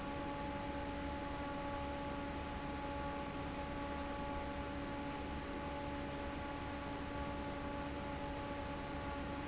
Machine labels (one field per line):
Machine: fan